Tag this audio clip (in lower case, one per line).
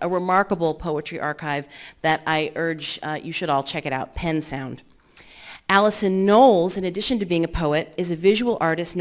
speech